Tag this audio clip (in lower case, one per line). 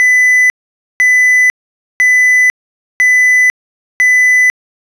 alarm